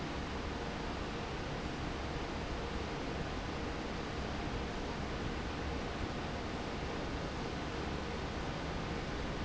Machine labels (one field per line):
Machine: fan